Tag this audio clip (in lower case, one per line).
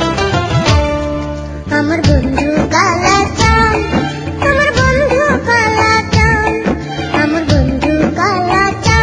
music